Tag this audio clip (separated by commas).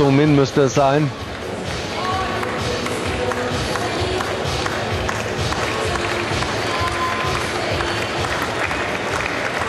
Speech, Music